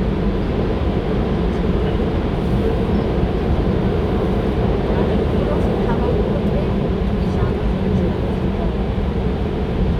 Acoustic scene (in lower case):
subway train